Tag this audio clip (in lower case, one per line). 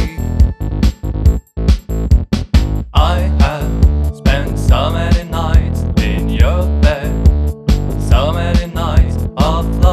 music